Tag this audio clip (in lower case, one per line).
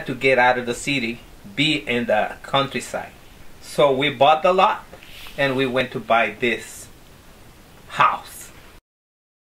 speech